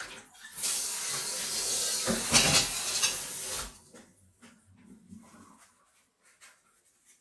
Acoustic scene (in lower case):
kitchen